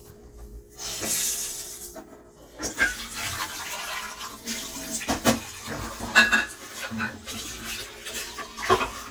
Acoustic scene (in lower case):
kitchen